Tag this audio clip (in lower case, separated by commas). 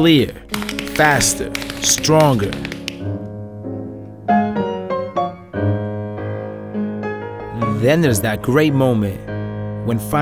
music, speech, tap